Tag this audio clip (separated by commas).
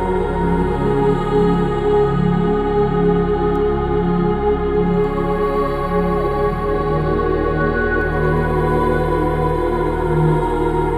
Music